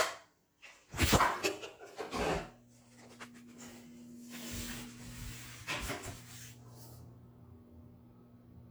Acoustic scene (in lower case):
restroom